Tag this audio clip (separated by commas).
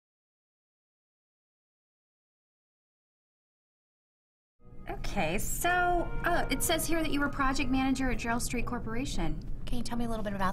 Speech, Music